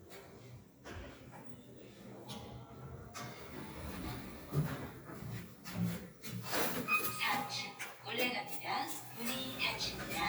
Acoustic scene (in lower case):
elevator